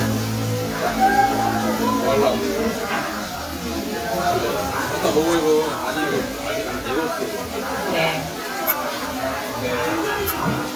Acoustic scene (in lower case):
restaurant